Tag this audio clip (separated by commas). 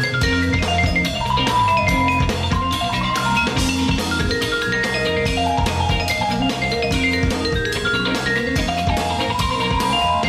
playing vibraphone